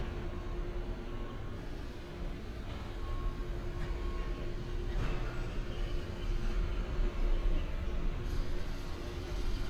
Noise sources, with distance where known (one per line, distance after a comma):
large-sounding engine
reverse beeper